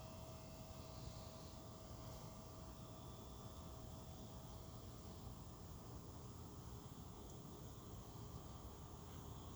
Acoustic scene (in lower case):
park